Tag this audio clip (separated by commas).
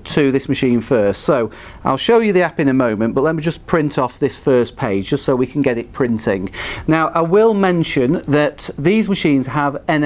Speech